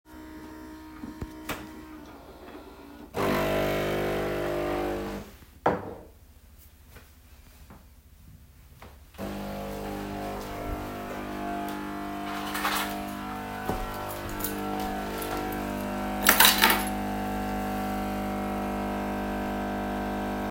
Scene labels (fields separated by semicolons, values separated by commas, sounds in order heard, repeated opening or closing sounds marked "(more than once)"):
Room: kitchen; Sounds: coffee machine, wardrobe or drawer, keys